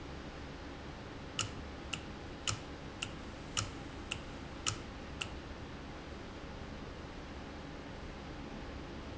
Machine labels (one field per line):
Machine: valve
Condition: normal